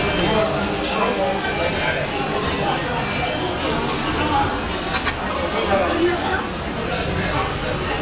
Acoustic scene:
restaurant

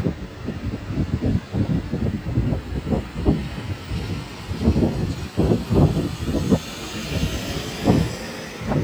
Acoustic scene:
street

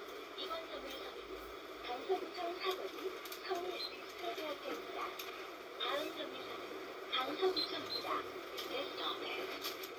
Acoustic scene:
bus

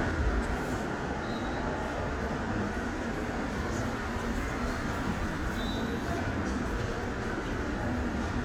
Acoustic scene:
subway station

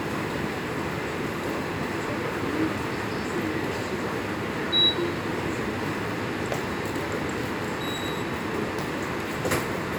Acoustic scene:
subway station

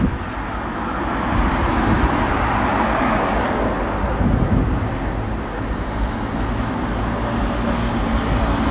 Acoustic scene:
street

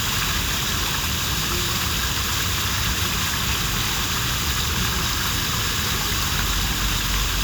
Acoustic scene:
park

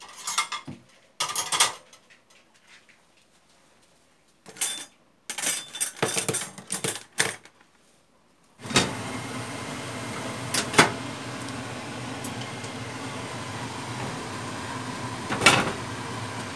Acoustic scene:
kitchen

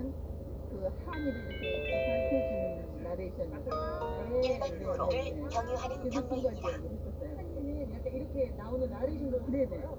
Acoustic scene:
car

